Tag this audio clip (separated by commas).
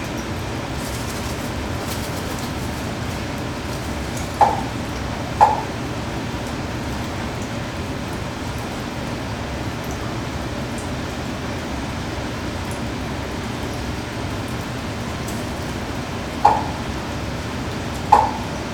Bird, Animal, Wild animals